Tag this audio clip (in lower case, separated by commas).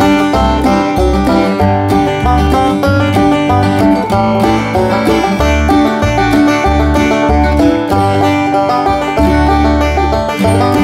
music